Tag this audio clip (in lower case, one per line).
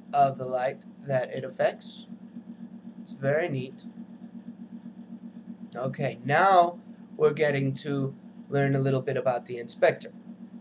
speech